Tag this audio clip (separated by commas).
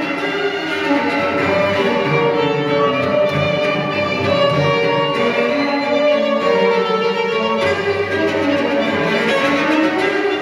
fiddle, Music, Musical instrument